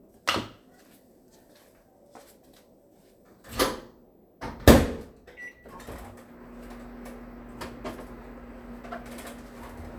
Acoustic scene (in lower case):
kitchen